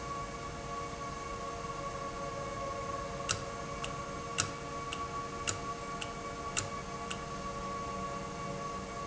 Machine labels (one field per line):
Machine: valve